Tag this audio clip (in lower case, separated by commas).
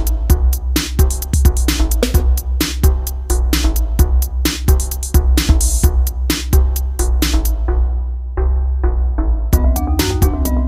music, drum machine